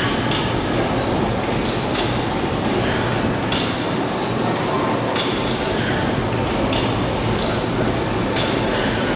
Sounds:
Heavy engine (low frequency), Speech

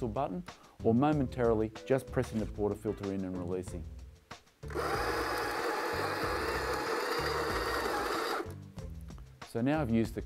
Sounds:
electric grinder grinding

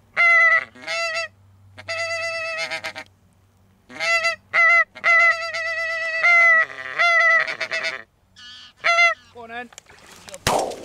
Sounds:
Fowl, Goose, Honk

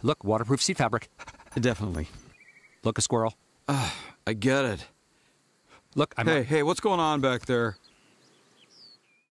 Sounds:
Speech, Animal

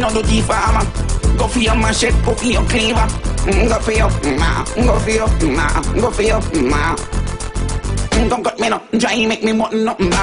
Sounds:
Music

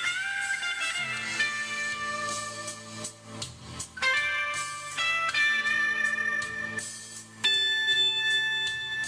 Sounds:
Musical instrument, Guitar, Music, Plucked string instrument

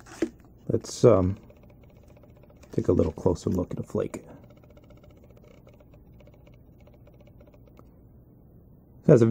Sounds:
inside a small room, Speech

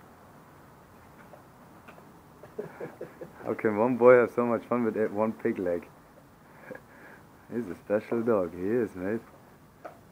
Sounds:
Speech

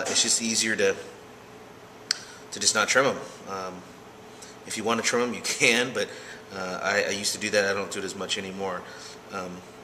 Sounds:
Speech

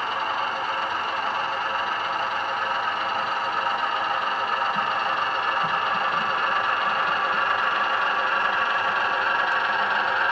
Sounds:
Clatter

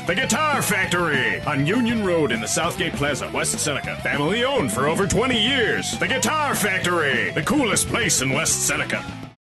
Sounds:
Plucked string instrument, Music, Guitar, Strum, Speech, Musical instrument

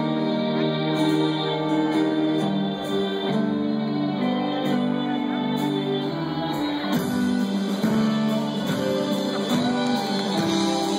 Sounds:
Music, Shout

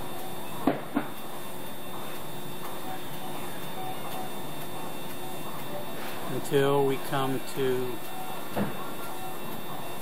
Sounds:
Speech

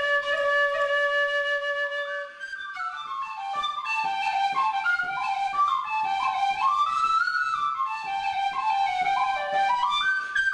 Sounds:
Music, Happy music, New-age music

